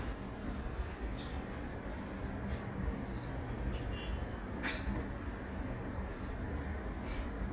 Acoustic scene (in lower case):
elevator